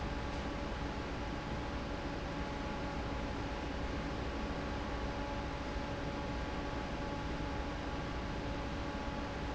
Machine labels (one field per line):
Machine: fan